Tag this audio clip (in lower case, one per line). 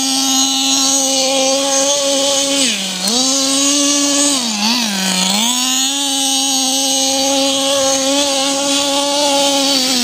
car passing by
car